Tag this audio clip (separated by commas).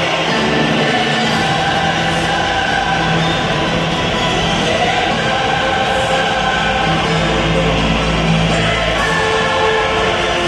Music